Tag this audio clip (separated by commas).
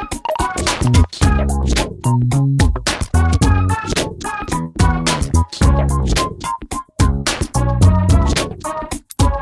Music